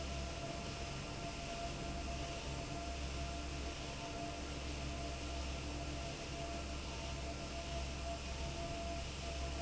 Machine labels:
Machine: fan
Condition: normal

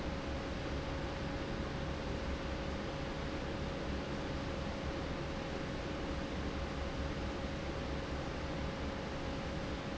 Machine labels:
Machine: fan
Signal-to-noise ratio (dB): -6 dB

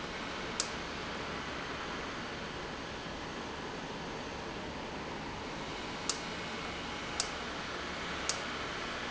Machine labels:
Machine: valve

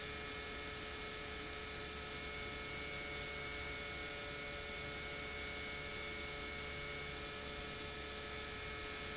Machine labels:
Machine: pump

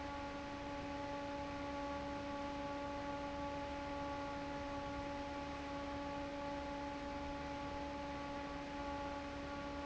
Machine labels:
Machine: fan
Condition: normal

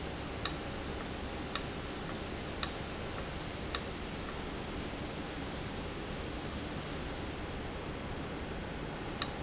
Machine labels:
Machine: valve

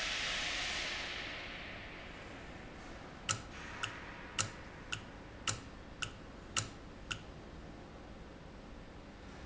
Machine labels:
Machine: valve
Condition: normal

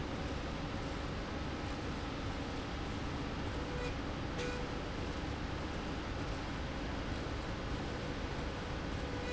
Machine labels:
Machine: slide rail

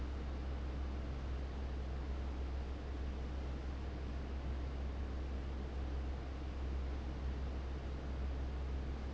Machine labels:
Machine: fan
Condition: abnormal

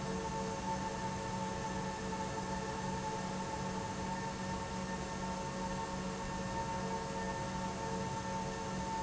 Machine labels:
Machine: pump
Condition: normal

